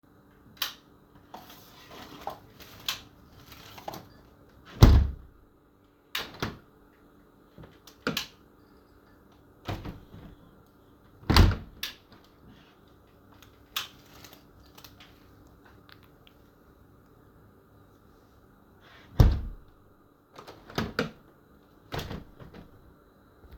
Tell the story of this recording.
I open and close the window while swithing the desk light on and off